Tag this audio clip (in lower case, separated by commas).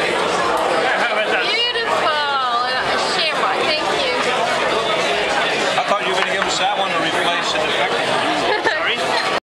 speech